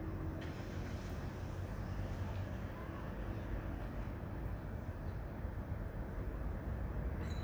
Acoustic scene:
residential area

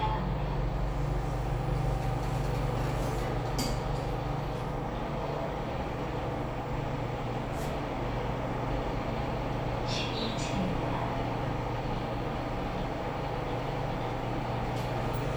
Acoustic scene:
elevator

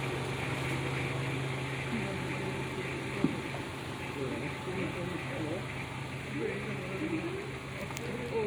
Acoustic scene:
residential area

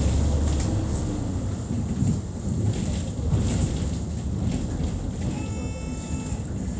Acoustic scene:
bus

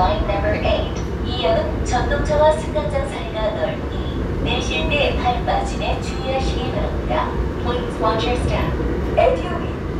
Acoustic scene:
subway train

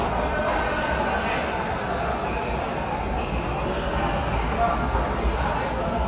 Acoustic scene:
subway station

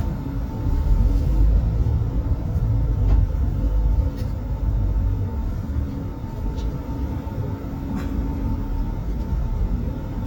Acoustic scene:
bus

